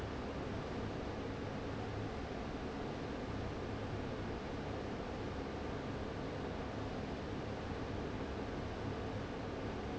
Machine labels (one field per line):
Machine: fan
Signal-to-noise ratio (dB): 0 dB